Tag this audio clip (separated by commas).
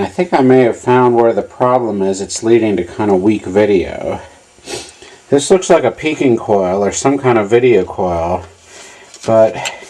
Speech